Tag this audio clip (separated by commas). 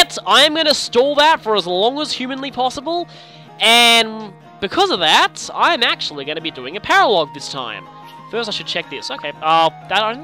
Music, Speech